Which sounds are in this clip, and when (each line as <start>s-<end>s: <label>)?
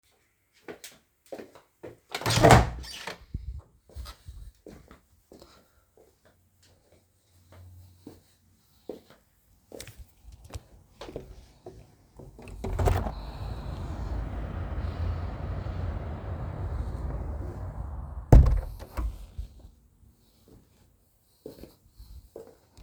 0.6s-2.0s: footsteps
2.1s-3.7s: door
3.9s-12.5s: footsteps
12.5s-13.2s: window
18.3s-19.4s: window
20.4s-22.8s: footsteps